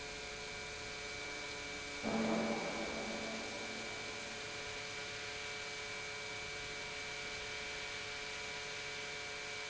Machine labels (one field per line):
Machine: pump